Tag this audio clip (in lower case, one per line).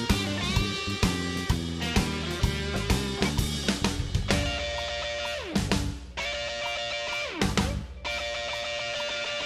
music
musical instrument
drum kit
drum